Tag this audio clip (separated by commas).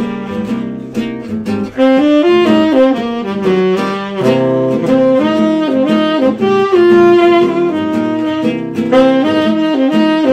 Guitar, Strum, Musical instrument, Acoustic guitar, Plucked string instrument, Music